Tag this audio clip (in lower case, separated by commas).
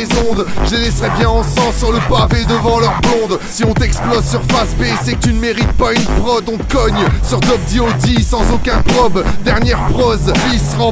music, rapping, hip hop music